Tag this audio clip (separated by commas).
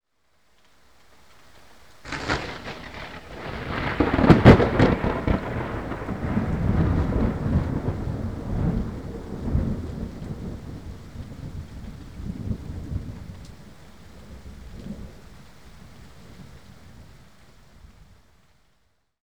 Thunderstorm, Thunder